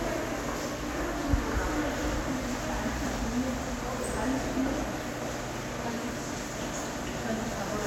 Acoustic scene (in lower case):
subway station